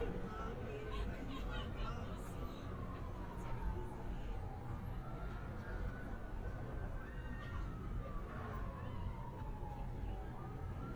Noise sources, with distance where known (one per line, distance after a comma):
siren, far
person or small group talking